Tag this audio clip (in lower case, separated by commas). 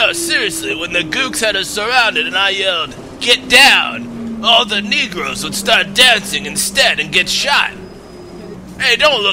vehicle, speech